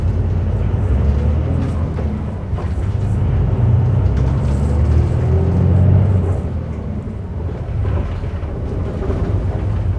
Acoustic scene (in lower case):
bus